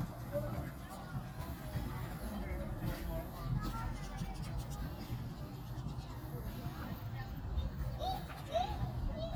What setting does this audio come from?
park